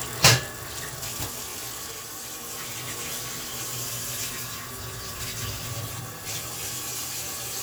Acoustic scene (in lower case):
kitchen